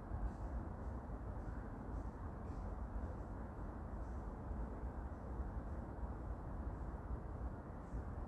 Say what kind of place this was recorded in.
park